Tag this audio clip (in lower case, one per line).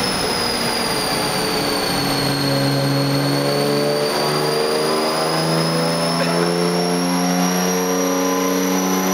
car
vehicle